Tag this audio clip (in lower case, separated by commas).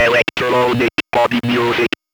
human voice, speech